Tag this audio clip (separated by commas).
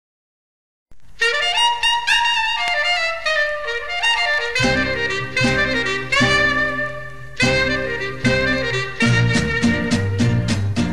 Music, Clarinet, Wind instrument